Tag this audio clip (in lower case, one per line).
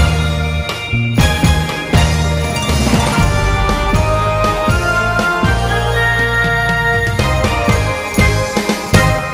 music